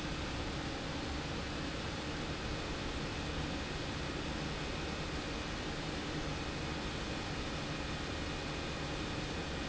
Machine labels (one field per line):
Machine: pump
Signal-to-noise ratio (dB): -6 dB